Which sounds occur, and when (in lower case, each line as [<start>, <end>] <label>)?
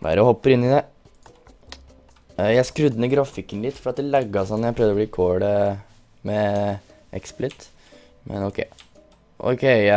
[0.00, 0.30] male speech
[0.00, 9.95] music
[0.00, 9.95] video game sound
[0.41, 0.79] male speech
[1.17, 1.39] clicking
[1.63, 1.74] clicking
[2.34, 3.35] male speech
[3.48, 5.77] male speech
[5.81, 7.54] rustle
[6.17, 6.81] male speech
[6.47, 6.59] clicking
[7.06, 7.66] male speech
[7.43, 7.54] clicking
[7.72, 8.06] breathing
[8.22, 8.66] male speech
[8.71, 8.84] clicking
[9.05, 9.16] clicking
[9.38, 9.95] male speech